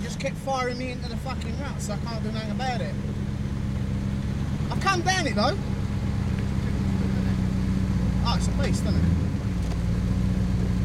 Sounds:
Speech, Vehicle, Car

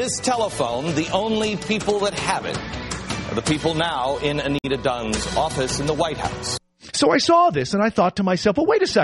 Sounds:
Music, Radio, Speech

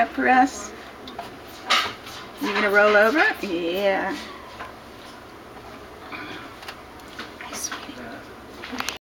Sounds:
Speech

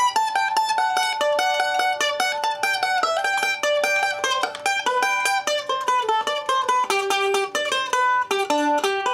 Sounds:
playing mandolin

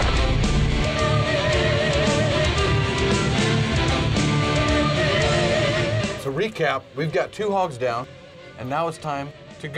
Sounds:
Music, Speech

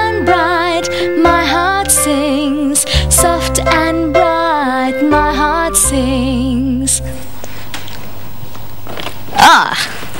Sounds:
Music, Music for children

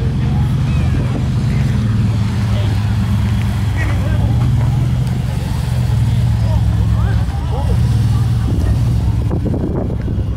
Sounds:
Speech, Truck, Vehicle

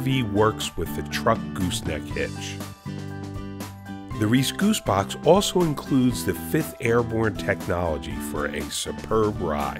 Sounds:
Speech, Music

